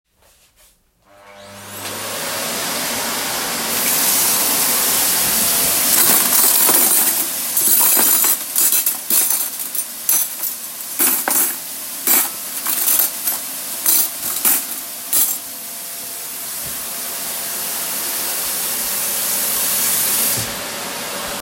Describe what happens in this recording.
This is a bonus scene with three overlapping sounds. I turned on the vacuum and the water tap while simultaneously handling dishes on the counter.